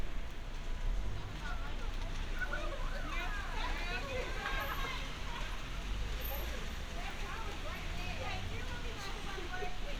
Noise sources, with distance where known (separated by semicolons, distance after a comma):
unidentified human voice, near